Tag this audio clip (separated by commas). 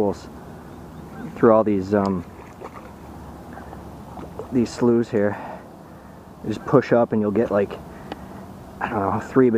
Speech, outside, rural or natural